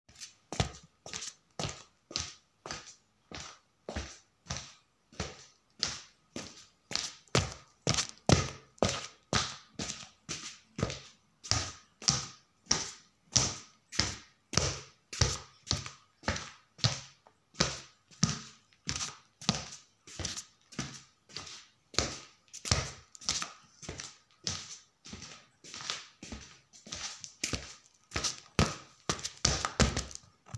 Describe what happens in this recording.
Footsteps sound